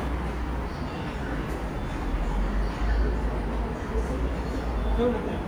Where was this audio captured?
in a subway station